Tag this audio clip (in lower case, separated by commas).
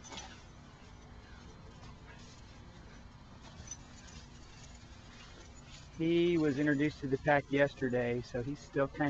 speech